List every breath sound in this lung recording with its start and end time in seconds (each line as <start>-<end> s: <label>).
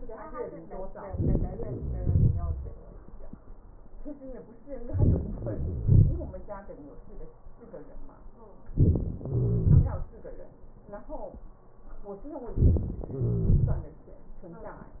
1.66-2.64 s: wheeze
5.41-6.39 s: wheeze
9.31-10.14 s: wheeze
13.16-13.99 s: wheeze